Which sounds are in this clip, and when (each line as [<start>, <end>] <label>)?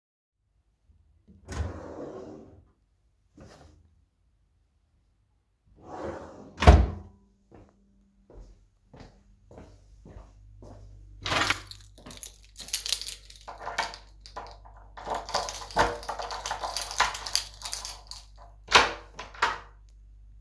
[1.44, 3.04] wardrobe or drawer
[5.77, 7.03] wardrobe or drawer
[7.50, 11.09] footsteps
[11.22, 14.12] keys
[14.91, 18.27] keys
[18.61, 19.76] door